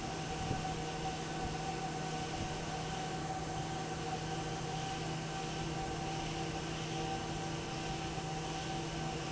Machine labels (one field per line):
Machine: fan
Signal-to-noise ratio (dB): -6 dB